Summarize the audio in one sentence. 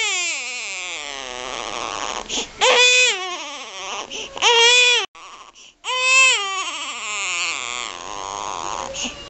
Baby crying with a shushing noise